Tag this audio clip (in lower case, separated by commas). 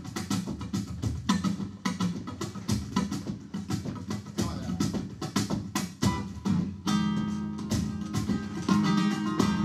plucked string instrument, flamenco, musical instrument, music of latin america, guitar, acoustic guitar, strum, music, electric guitar